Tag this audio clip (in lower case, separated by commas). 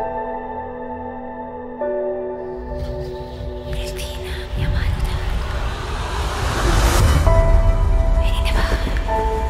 speech, music